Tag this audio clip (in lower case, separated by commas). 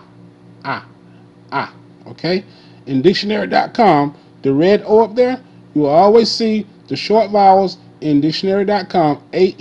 speech